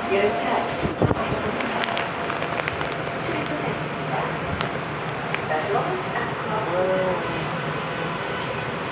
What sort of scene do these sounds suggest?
subway station